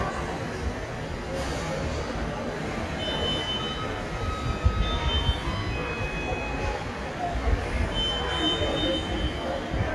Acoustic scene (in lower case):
subway station